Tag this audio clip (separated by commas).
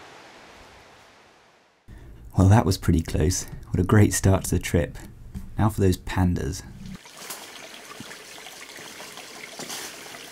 Speech, Water, dribble